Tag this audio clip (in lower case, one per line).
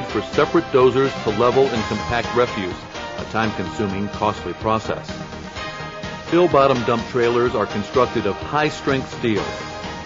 music
speech